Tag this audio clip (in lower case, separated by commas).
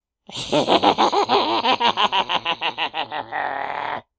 laughter, human voice